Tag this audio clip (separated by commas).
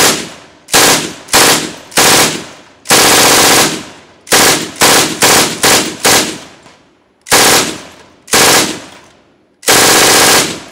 machine gun shooting